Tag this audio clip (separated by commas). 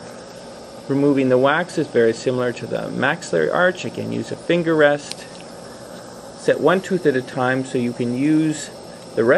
inside a small room, Speech